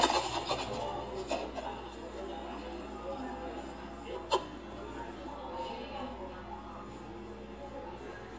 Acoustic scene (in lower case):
cafe